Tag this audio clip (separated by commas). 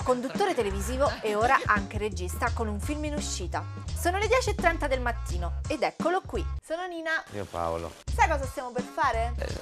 Speech, Music